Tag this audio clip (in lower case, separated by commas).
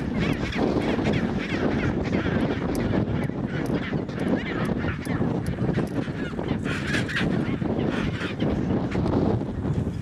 penguins braying